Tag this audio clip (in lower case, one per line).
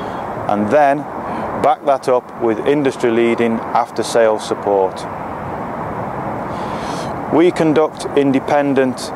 speech